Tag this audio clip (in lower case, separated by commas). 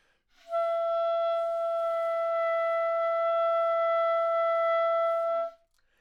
musical instrument, wind instrument, music